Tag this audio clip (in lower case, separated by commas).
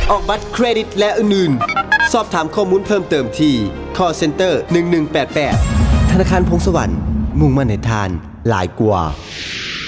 music, speech